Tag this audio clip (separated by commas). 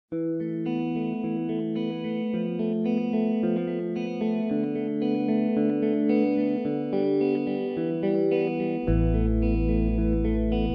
Effects unit, Music